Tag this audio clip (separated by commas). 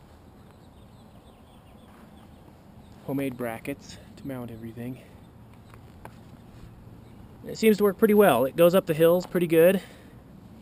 Speech